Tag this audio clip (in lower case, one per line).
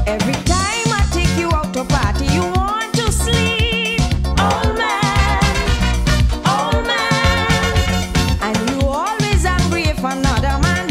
female singing
music